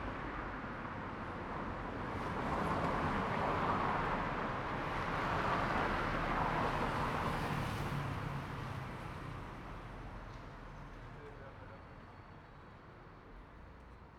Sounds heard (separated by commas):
car wheels rolling, car, motorcycle, people talking, motorcycle engine accelerating